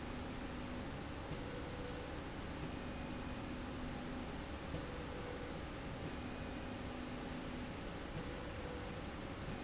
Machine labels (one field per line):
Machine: slide rail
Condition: normal